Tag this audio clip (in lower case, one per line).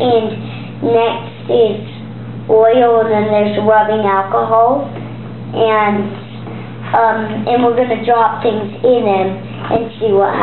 speech